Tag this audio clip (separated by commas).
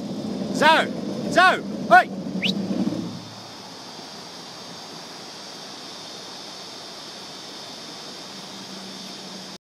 Speech, Sailboat